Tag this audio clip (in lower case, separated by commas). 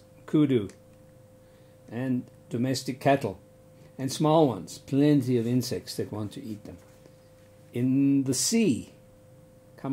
speech